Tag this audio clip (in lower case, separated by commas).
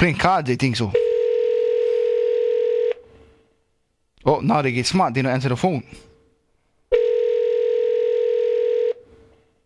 speech, dial tone